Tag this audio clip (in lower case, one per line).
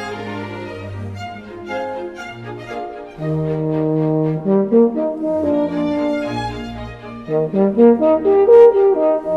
brass instrument